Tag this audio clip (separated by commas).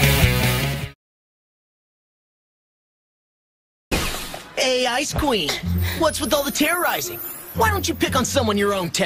Speech, Music